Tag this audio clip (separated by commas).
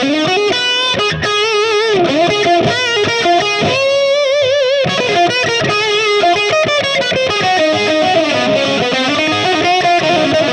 Guitar, Electric guitar, Musical instrument, playing electric guitar, Acoustic guitar, Music, Strum, Plucked string instrument